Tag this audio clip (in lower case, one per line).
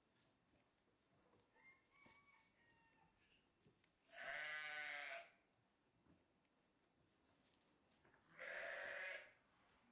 livestock